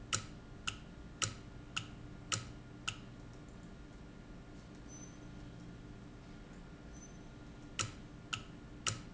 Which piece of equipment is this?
valve